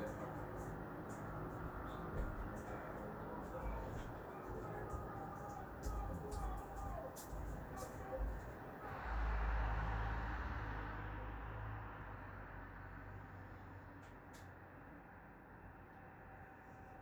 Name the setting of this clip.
street